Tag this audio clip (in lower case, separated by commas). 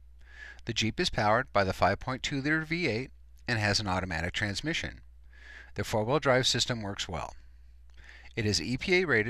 speech